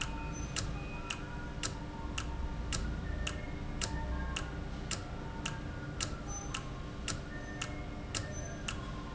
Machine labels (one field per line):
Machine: valve